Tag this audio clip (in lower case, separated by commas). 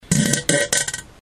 fart